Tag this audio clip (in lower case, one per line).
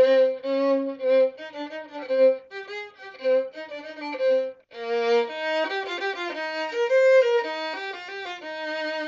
violin
music
musical instrument